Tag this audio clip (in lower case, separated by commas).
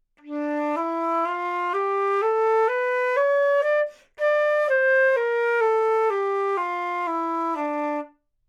music, musical instrument, wind instrument